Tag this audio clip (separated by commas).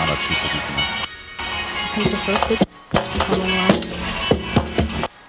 Speech, Music